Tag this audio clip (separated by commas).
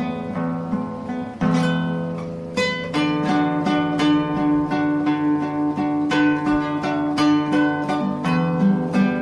Music, Guitar, Plucked string instrument, Strum, Musical instrument, Acoustic guitar